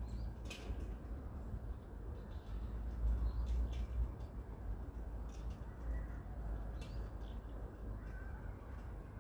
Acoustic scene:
residential area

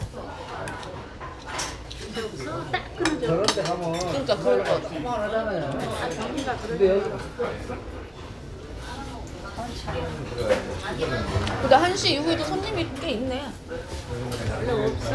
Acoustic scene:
restaurant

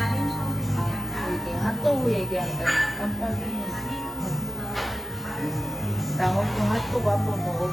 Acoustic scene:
cafe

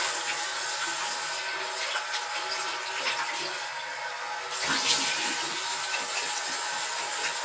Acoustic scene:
restroom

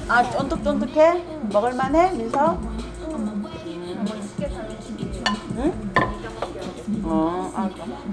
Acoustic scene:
restaurant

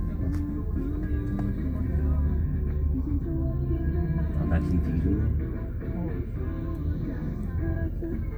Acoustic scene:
car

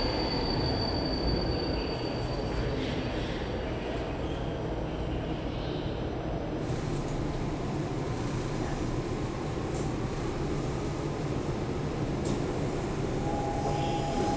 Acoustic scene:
subway station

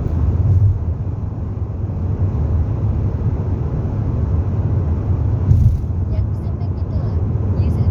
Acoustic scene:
car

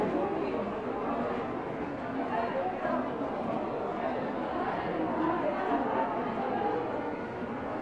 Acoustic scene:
crowded indoor space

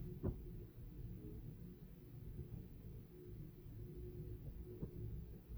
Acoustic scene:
elevator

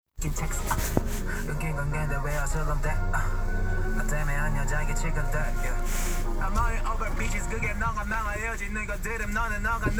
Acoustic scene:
car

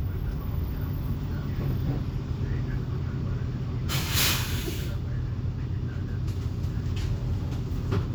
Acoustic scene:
bus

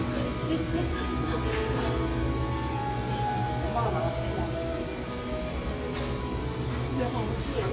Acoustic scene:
cafe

